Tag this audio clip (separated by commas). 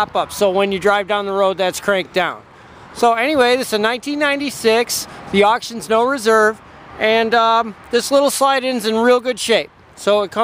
Speech